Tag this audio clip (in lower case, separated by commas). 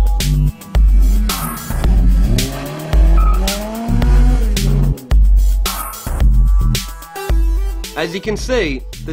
car, speech, vehicle, music, motor vehicle (road)